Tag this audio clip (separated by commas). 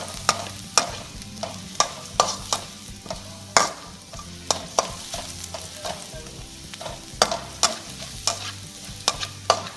Stir, Sizzle, Frying (food)